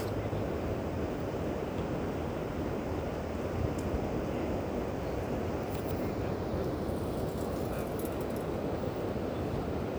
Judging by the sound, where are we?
in a park